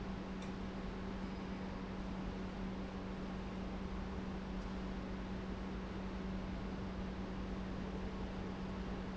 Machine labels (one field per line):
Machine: pump